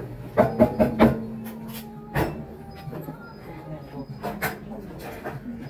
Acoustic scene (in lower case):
cafe